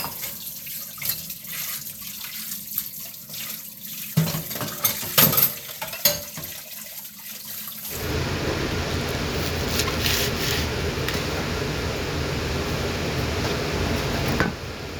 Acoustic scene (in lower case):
kitchen